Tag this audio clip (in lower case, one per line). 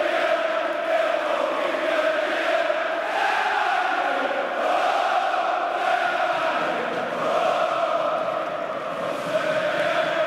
chant